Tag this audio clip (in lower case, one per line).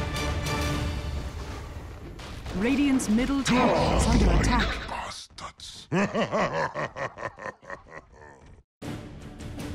speech
music